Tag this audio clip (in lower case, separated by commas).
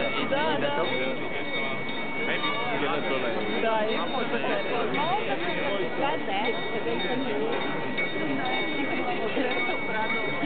speech